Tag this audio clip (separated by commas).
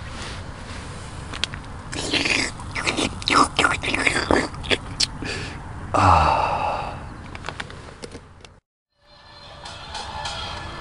Music, outside, rural or natural